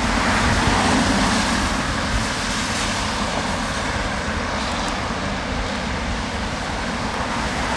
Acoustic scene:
street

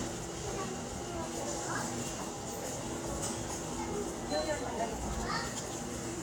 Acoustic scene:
subway station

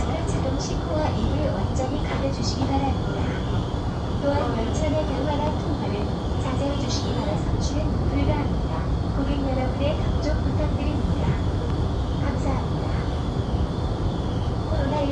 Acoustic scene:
subway train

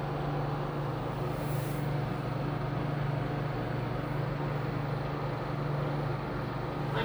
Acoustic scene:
elevator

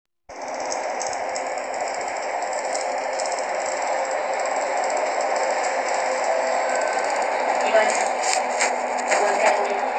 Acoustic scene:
bus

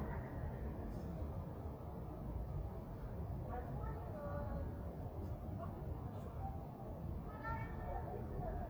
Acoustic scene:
residential area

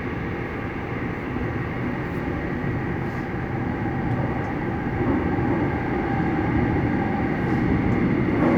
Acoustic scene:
subway train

